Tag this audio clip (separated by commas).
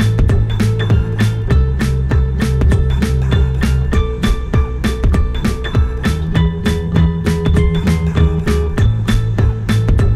Music